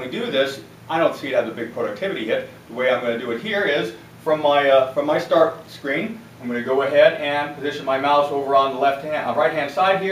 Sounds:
speech

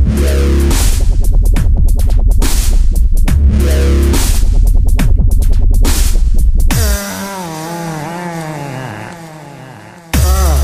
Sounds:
electronic music
music
dubstep

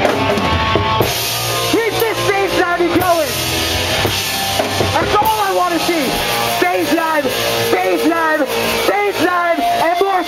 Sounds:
field recording
music
speech

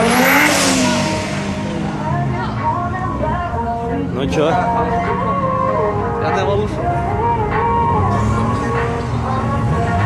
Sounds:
car passing by

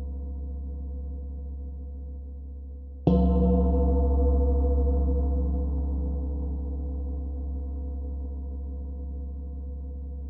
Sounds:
gong

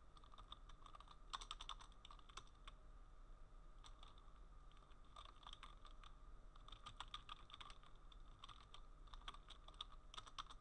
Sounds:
silence

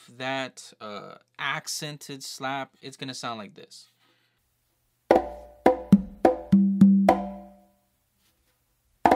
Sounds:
playing congas

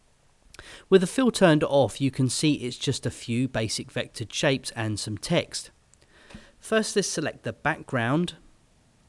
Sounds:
speech

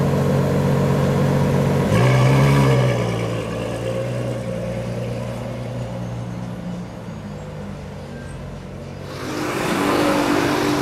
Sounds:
car
vehicle
auto racing

